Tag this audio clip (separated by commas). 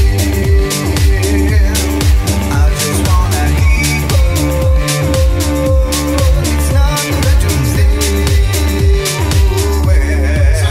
Funk